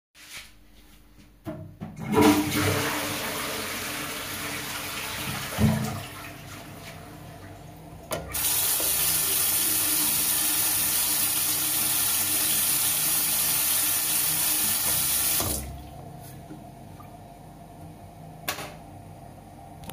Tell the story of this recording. After using the toilet, I flush it, wash my hands and turn off the light